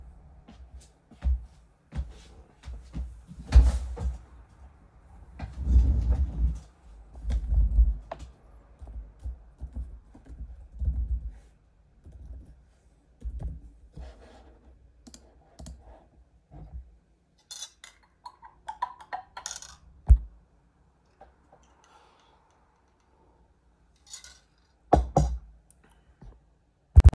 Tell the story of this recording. I entered the office, sat down and rolled to the desk. Then I started typing on the keyboard and clicked to close the task. I stirred the coffee in a mug with a spoon, lifted the mug, took a sip and placed it back on the desk.